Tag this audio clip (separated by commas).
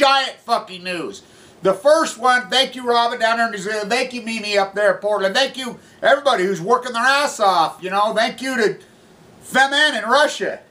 Speech